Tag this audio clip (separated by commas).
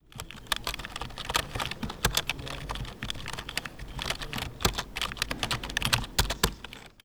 Domestic sounds, Computer keyboard, Typing